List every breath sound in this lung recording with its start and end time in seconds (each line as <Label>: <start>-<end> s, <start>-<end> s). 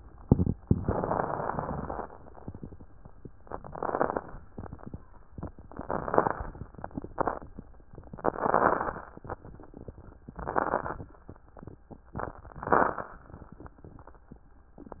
Inhalation: 0.15-0.59 s
Exhalation: 0.60-2.04 s, 3.44-4.35 s, 5.61-6.53 s, 8.18-9.23 s, 10.30-11.04 s, 12.59-13.24 s
Crackles: 0.15-0.59 s